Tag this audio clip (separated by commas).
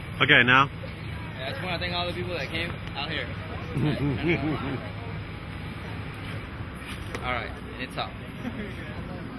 Speech